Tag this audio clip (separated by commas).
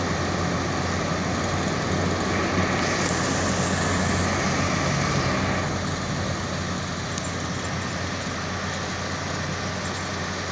Truck, Vehicle